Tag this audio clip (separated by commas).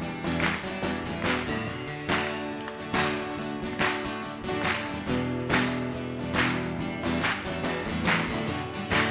Music